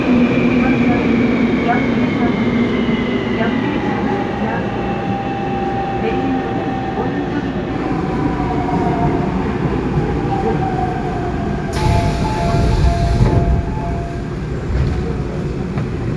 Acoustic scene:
subway train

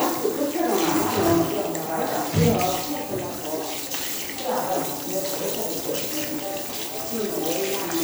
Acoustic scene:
restroom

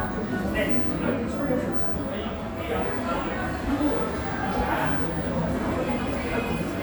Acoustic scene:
cafe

